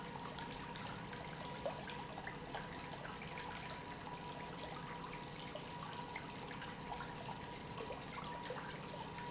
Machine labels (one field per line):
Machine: pump